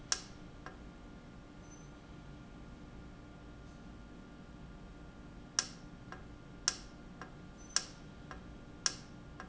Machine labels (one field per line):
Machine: valve